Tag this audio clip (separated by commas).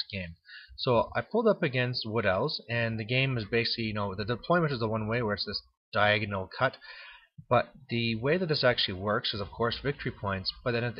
Speech